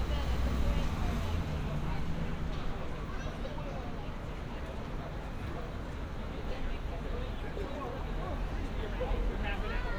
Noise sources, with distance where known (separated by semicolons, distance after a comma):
person or small group talking, near